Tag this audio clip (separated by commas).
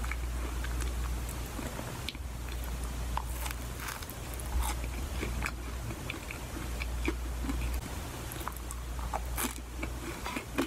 people eating apple